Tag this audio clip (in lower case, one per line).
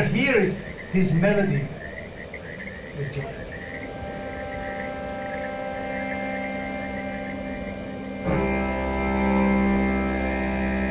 music
percussion
speech
musical instrument